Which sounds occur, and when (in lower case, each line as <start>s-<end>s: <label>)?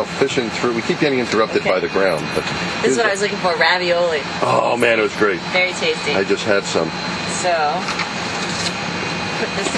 0.0s-9.7s: mechanisms
0.2s-2.3s: man speaking
0.2s-9.7s: conversation
2.8s-4.2s: woman speaking
2.8s-3.0s: man speaking
4.4s-5.4s: man speaking
5.5s-6.3s: woman speaking
6.0s-7.0s: man speaking
7.4s-7.8s: woman speaking
7.8s-8.1s: generic impact sounds
8.3s-8.7s: generic impact sounds
9.4s-9.7s: woman speaking
9.5s-9.7s: generic impact sounds